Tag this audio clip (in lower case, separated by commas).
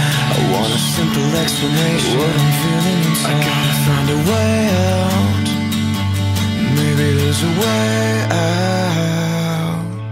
music